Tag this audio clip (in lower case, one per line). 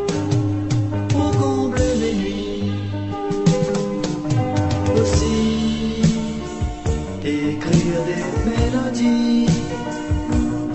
music